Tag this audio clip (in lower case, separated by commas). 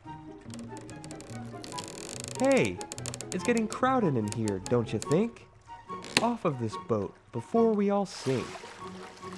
speech, music